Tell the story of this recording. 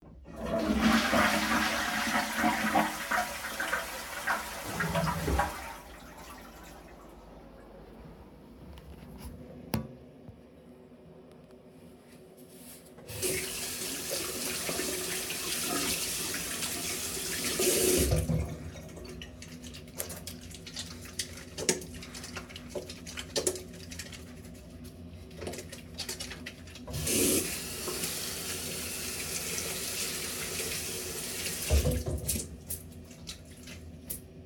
I flush the toilet. Then I turn on the faucet and wet my hands. I apply soap, then wash it off. Finally I turn off the faucet and shake the water of my hands.